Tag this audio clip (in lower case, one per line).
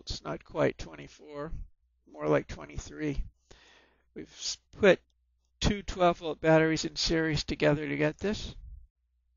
speech